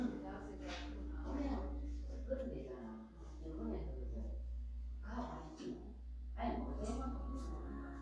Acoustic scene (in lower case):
crowded indoor space